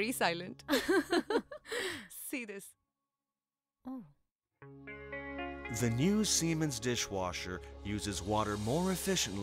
Two women speaking and laughing followed by a man speaking with music